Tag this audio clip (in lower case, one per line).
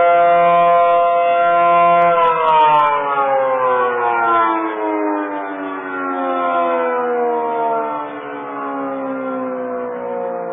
civil defense siren